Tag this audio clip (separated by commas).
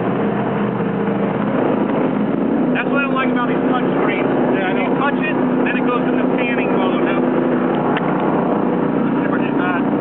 speedboat, Boat, Speech, Vehicle